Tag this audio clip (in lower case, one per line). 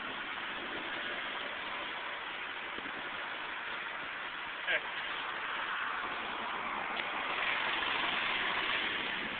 vehicle